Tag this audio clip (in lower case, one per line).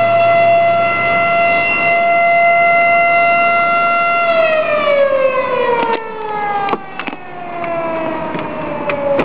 siren